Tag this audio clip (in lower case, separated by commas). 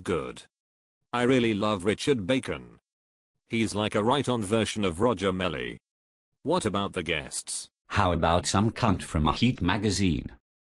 speech